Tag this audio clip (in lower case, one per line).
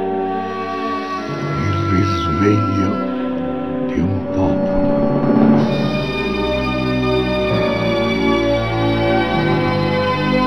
speech
music